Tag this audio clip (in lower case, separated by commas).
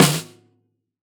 percussion, music, musical instrument, snare drum, drum